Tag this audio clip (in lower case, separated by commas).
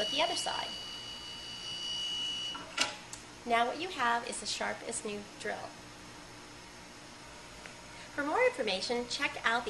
speech